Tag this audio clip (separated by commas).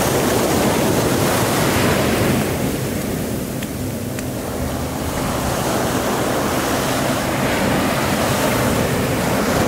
ocean burbling, surf, Ocean